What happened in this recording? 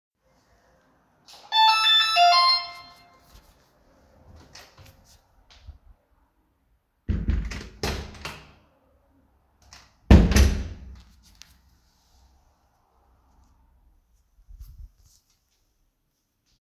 The phone is placed near the entrance hallway. A bell rings loudly near the door. Shortly afterward the door is opened and closed.